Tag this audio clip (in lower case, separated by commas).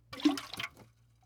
splash, liquid